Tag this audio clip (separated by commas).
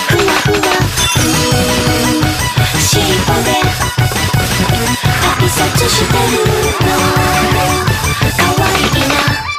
Music